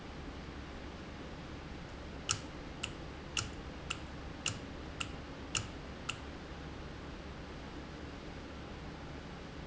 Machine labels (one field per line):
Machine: valve